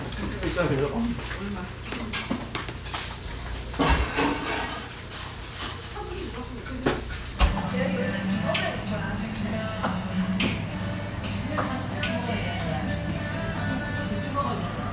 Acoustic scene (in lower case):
restaurant